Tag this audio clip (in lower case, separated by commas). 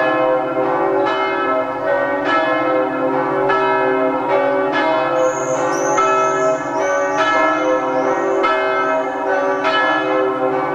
church bell, church bell ringing